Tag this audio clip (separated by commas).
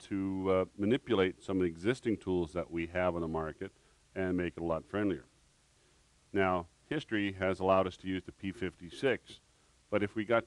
Speech